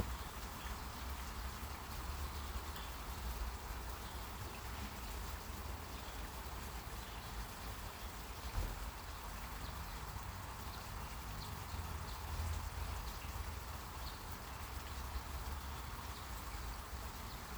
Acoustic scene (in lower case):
park